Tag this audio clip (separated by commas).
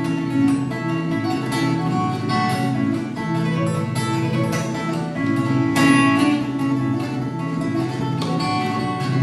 Plucked string instrument, Guitar, Acoustic guitar, Music, Musical instrument